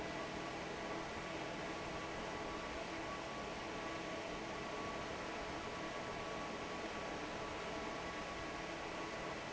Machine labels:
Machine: fan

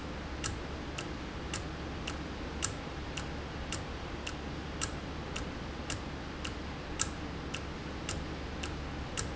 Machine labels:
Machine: valve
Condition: normal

